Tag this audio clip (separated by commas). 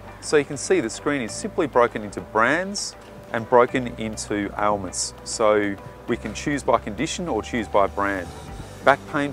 Speech, Music